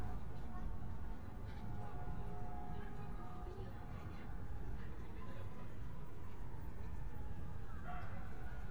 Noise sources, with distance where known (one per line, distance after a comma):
unidentified alert signal, far